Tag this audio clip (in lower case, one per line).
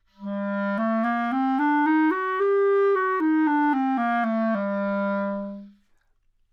music
musical instrument
wind instrument